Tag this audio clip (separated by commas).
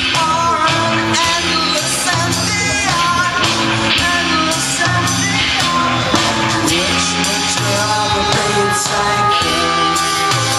Music, Musical instrument, Roll, Singing, Rock and roll